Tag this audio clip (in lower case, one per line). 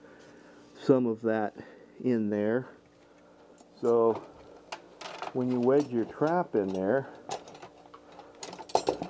speech
inside a large room or hall